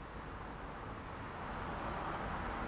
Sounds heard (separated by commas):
car wheels rolling, car